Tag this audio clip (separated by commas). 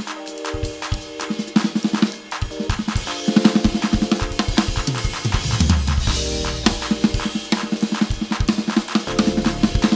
Musical instrument, Drum, Music, Drum kit